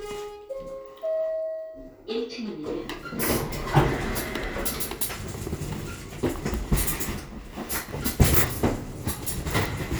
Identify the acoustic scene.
elevator